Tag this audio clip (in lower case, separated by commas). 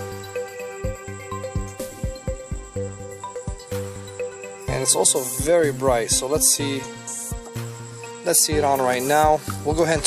speech, music